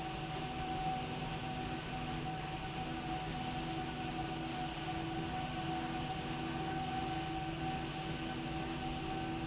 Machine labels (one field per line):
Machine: slide rail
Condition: normal